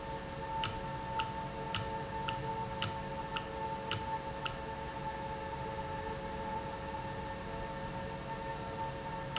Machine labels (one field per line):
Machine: valve